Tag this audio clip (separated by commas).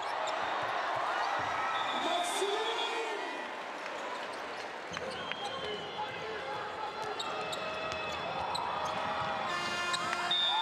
Basketball bounce, Speech